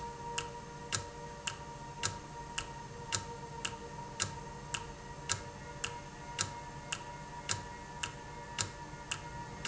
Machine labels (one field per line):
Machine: valve